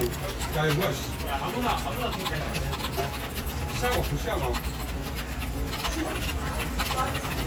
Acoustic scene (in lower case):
crowded indoor space